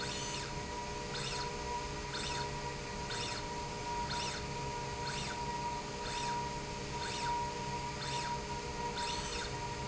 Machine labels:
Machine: slide rail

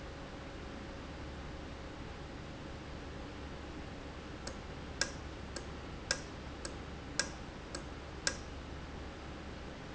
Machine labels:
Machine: valve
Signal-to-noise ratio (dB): 0 dB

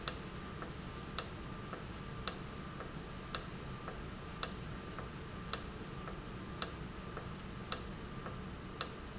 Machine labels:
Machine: valve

